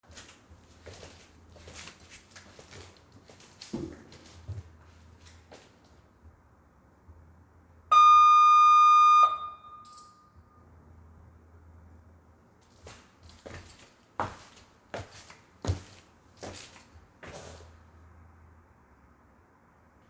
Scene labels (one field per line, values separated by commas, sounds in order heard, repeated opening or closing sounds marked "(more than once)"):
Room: hallway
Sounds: footsteps, bell ringing